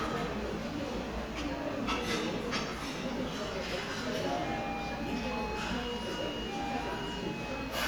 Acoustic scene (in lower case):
restaurant